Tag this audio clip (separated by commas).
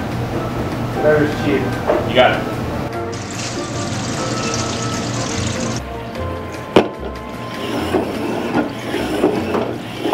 Speech, Music